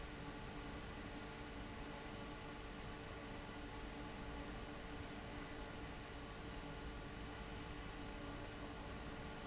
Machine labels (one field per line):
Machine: fan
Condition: abnormal